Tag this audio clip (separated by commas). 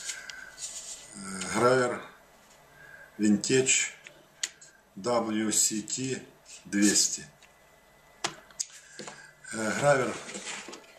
Speech